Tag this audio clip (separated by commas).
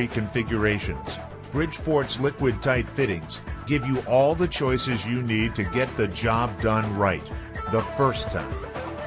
Music, Speech